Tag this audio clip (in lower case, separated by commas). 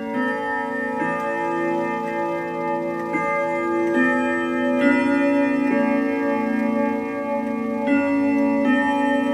tick-tock, music